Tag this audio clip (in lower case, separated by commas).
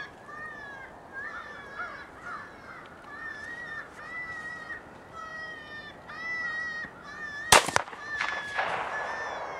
animal